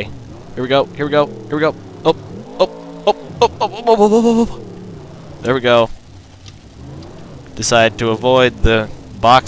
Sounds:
Vehicle, Speech

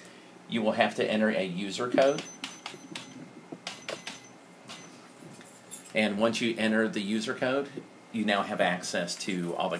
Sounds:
Speech

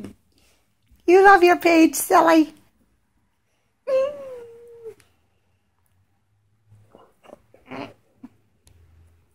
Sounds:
Animal, inside a small room, pets, Speech, Dog

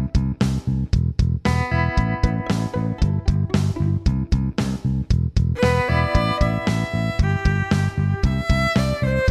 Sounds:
Musical instrument, Violin, Music

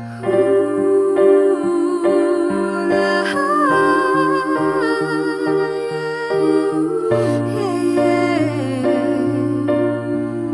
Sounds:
Singing, Music, Tender music

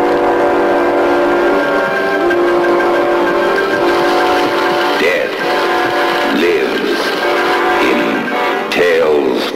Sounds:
Speech, Music

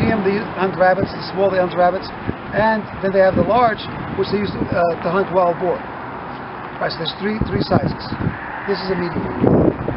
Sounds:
Speech

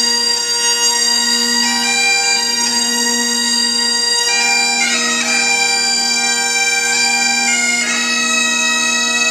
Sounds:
Bagpipes, playing bagpipes, Wind instrument

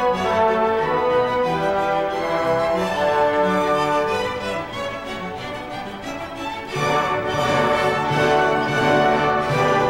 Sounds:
Music

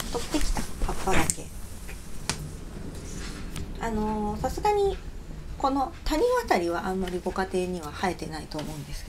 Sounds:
inside a small room, Speech

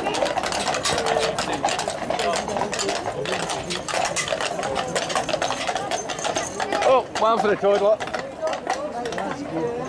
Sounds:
Speech, outside, urban or man-made

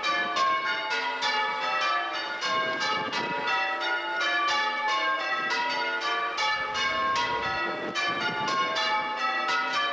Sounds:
church bell ringing

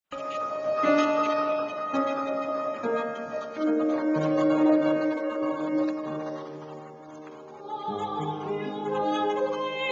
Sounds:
Music, Singing, Classical music, Opera

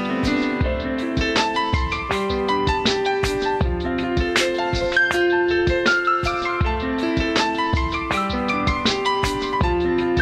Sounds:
Tender music, Music

